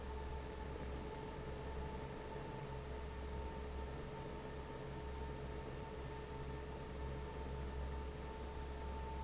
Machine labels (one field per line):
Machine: fan